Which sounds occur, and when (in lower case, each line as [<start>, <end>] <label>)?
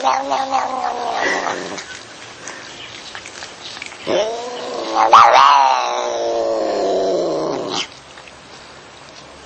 [0.00, 2.02] cat
[0.00, 9.45] mechanisms
[1.12, 2.02] laughter
[2.32, 2.74] breathing
[2.40, 3.46] cat
[2.94, 3.37] generic impact sounds
[3.61, 3.88] cat
[3.75, 3.86] generic impact sounds
[4.05, 7.87] cat
[4.41, 4.80] generic impact sounds
[8.20, 8.38] generic impact sounds
[9.11, 9.38] generic impact sounds